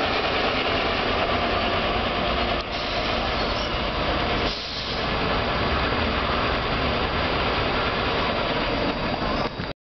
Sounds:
Vehicle, Bus

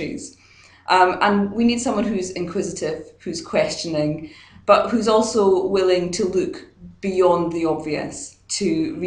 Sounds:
Speech

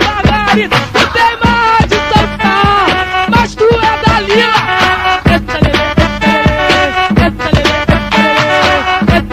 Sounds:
Music

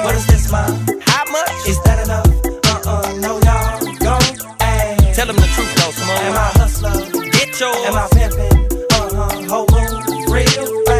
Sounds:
Rapping, Hip hop music

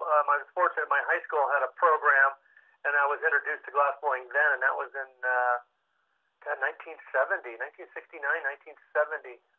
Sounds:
Speech

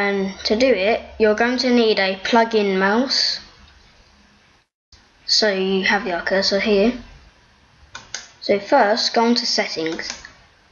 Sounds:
Speech

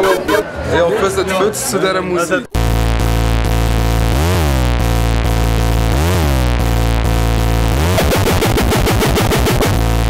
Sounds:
Speech, Music

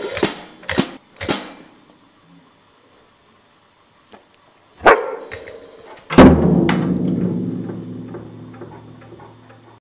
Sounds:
Domestic animals, Music, Dog, Bow-wow, Animal

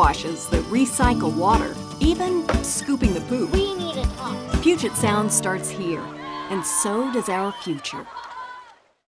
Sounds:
Speech, Music

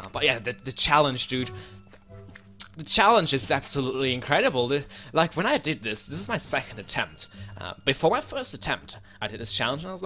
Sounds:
Speech, Music

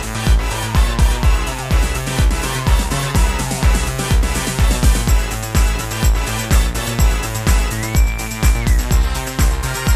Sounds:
Techno, Music, Electronic music

